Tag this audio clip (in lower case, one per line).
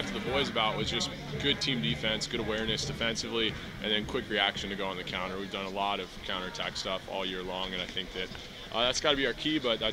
speech